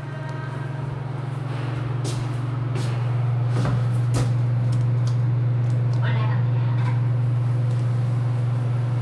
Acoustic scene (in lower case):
elevator